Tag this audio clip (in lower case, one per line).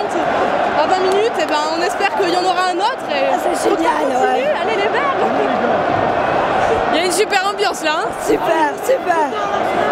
speech